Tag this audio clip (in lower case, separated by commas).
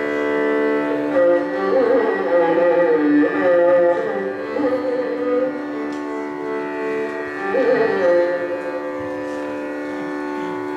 music, musical instrument, violin